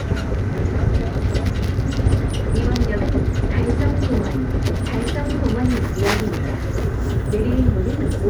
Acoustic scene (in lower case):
subway train